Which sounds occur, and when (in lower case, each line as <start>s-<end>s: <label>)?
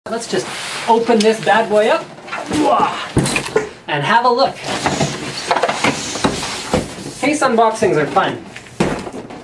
0.2s-1.0s: mechanisms
0.2s-1.0s: whistling
1.2s-1.5s: generic impact sounds
1.6s-2.9s: generic impact sounds
3.2s-4.3s: mechanisms
5.4s-6.1s: ding
5.4s-6.1s: mechanisms
7.2s-9.4s: mechanisms
7.4s-9.4s: man speaking
8.8s-9.4s: generic impact sounds